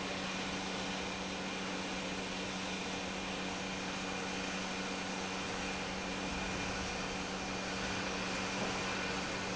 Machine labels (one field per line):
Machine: pump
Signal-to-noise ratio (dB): -6 dB